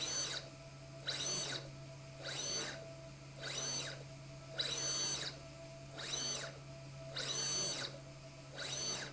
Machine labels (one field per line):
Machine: slide rail